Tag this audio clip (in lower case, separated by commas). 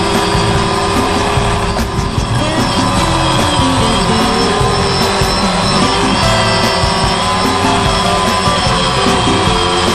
music